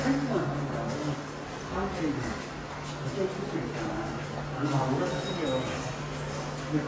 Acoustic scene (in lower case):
subway station